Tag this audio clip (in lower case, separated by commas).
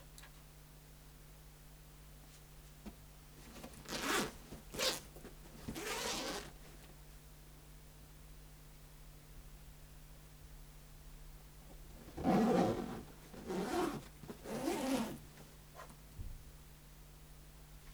home sounds, zipper (clothing)